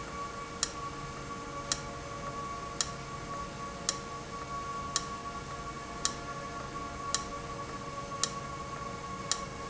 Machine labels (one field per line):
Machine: valve